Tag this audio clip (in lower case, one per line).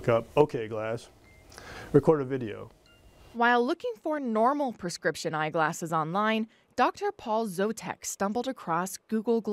speech